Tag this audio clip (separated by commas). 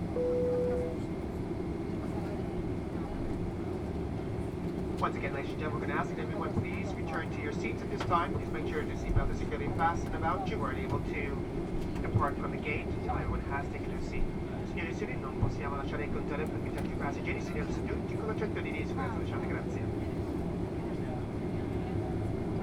Vehicle, Aircraft, Fixed-wing aircraft